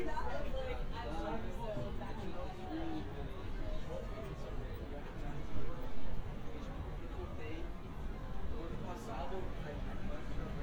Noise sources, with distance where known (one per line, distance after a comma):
person or small group talking, near